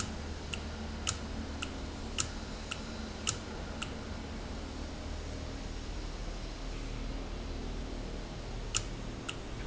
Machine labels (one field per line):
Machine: valve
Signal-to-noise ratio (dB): -6 dB